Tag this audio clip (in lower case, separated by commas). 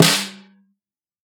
drum, music, percussion, musical instrument, snare drum